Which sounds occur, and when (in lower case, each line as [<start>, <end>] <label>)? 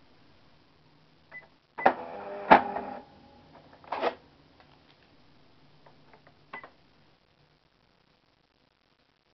[0.00, 9.33] background noise
[1.34, 1.49] bleep
[1.36, 1.59] tick
[1.77, 3.12] cash register
[1.79, 1.88] bleep
[1.86, 2.00] generic impact sounds
[2.52, 2.72] generic impact sounds
[3.53, 3.88] tick
[4.56, 4.72] tick
[4.84, 5.15] tick
[5.85, 5.97] tick
[6.12, 6.39] tick
[6.54, 6.75] tick
[6.59, 6.72] bleep